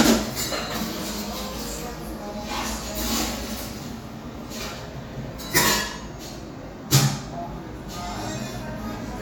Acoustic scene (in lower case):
cafe